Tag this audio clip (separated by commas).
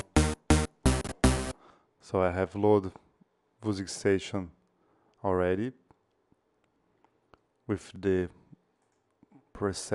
Speech, Sampler, Music